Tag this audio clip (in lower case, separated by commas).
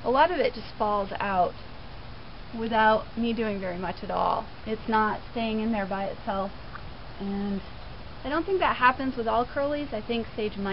speech